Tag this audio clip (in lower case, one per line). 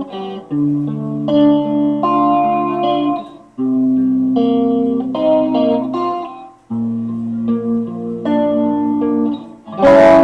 acoustic guitar
music
musical instrument